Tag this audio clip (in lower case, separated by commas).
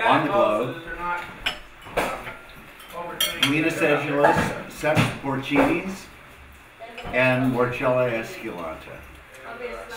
speech, inside a small room